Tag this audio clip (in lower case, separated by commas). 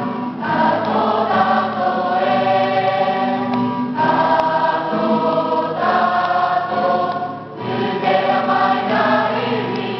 music, choir